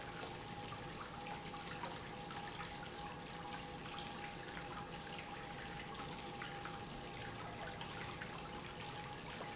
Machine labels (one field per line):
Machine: pump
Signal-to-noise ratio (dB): 6 dB